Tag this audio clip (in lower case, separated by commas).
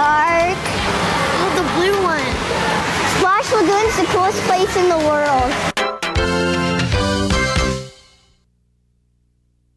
speech, music, slosh